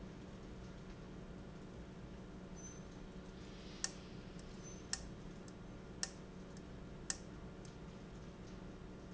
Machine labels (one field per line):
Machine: valve